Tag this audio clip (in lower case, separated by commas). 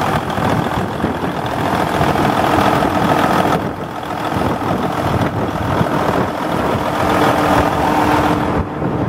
vehicle, engine, idling, medium engine (mid frequency)